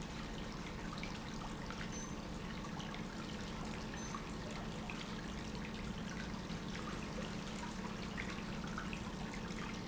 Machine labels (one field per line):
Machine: pump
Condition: normal